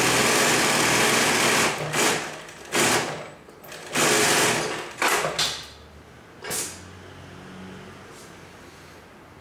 A sewing machine runs followed by a clang